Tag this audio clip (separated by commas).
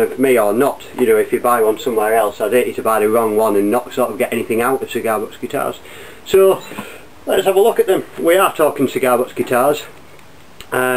Speech